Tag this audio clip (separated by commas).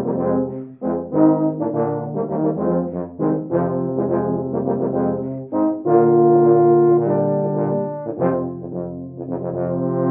Music